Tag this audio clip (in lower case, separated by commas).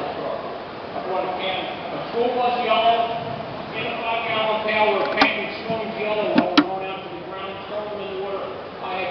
speech